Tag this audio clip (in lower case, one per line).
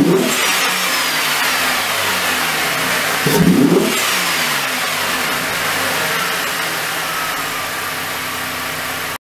white noise